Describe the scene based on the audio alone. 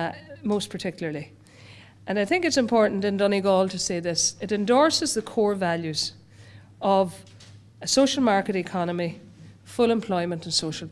A woman with an accent giving a speech